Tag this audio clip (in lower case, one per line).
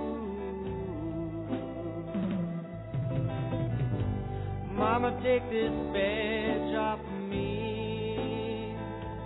music